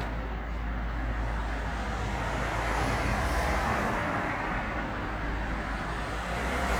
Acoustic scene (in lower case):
street